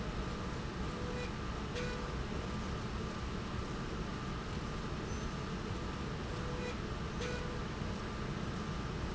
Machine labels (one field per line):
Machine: slide rail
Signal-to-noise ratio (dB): -6 dB